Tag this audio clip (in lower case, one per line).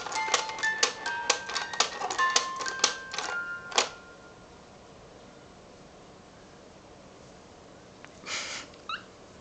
music